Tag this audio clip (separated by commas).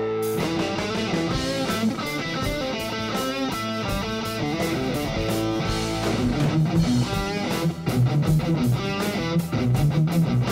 Music, Guitar, Electric guitar, Plucked string instrument, Strum, Musical instrument